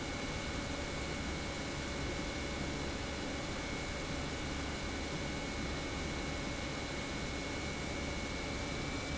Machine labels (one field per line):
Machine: pump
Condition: normal